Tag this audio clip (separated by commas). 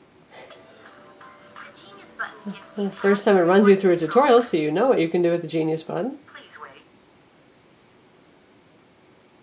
Speech